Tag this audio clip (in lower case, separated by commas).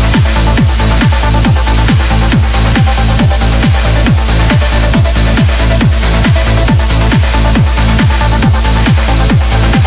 sound effect, music